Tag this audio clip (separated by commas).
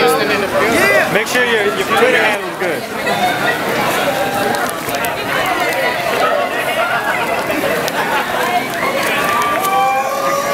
Speech